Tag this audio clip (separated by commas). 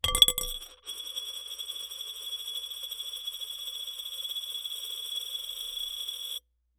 home sounds, Coin (dropping), Glass